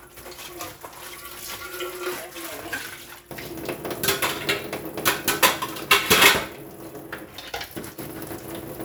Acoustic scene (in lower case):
kitchen